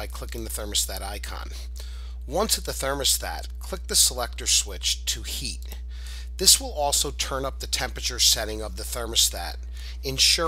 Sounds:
speech

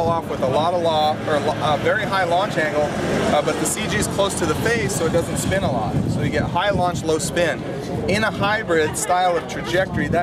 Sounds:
speech

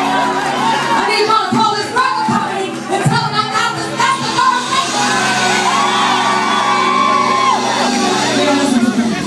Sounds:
shout
music
speech

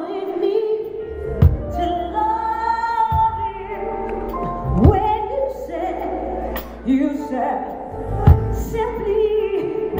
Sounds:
tender music
music

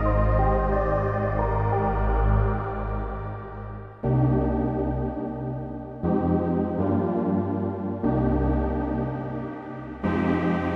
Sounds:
music

